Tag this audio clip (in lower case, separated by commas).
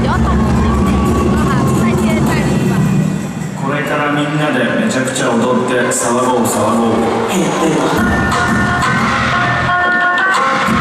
speech, music